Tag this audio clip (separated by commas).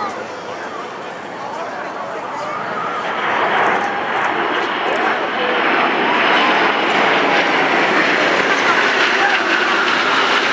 airplane flyby